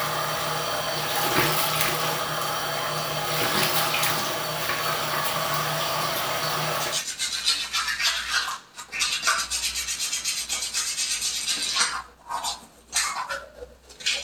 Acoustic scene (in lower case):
restroom